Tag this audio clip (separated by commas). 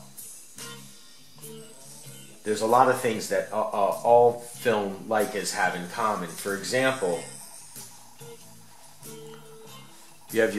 Music, Speech